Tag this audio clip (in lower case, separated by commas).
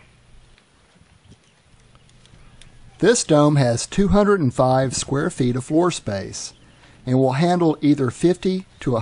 speech